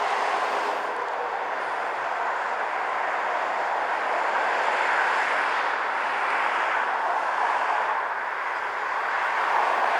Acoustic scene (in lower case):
street